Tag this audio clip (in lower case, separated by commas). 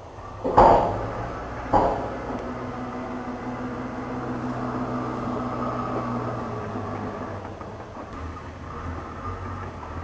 car, vehicle